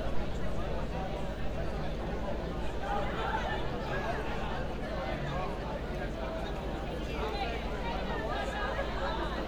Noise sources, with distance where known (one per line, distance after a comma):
large crowd